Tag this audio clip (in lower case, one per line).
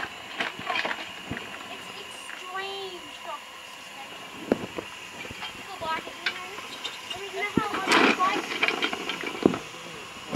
speech